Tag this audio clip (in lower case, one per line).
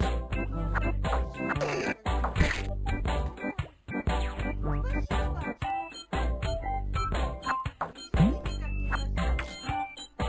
speech
music